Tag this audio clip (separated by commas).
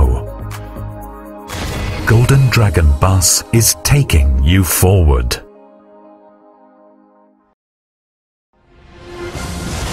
Music, Speech